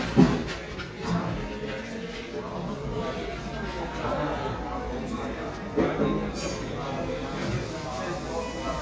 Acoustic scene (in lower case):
cafe